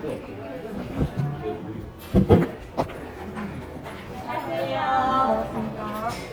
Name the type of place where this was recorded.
crowded indoor space